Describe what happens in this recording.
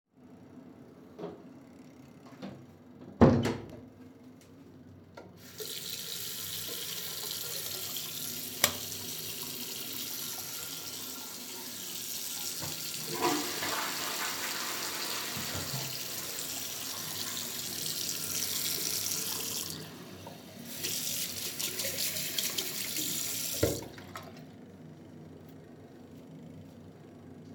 I walked into a bathroom, turned on the faucet, then the lights. I used the toilet in parallel with the running water. Later on I washed my hands.